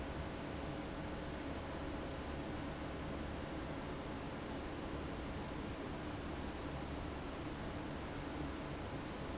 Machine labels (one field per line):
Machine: fan